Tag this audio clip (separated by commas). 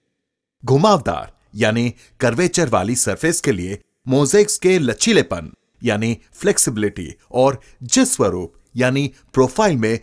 Speech